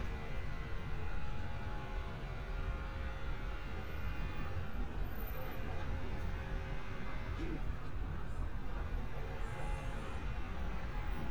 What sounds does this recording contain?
unidentified powered saw